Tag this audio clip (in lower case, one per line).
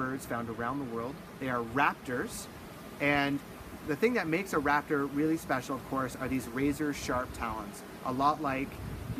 speech